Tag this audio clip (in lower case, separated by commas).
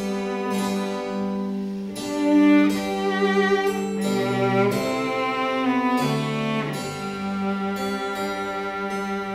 bowed string instrument, fiddle, pizzicato, harp